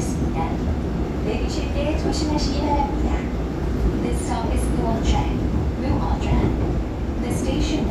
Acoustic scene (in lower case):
subway train